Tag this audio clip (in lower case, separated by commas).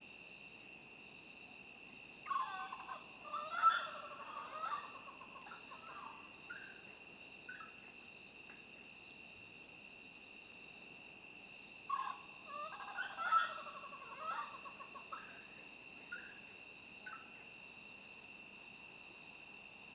wild animals, insect, cricket, animal